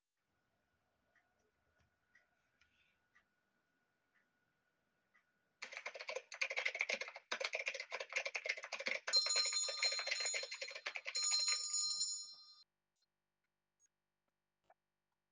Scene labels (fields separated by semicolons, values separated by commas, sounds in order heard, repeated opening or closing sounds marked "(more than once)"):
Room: living room; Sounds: keyboard typing, bell ringing